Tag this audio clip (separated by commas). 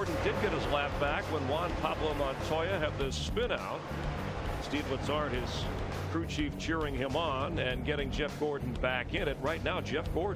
Speech, Music